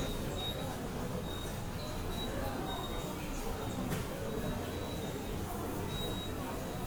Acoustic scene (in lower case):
subway station